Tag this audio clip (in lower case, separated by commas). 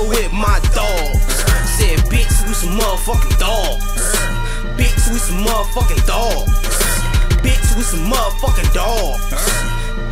music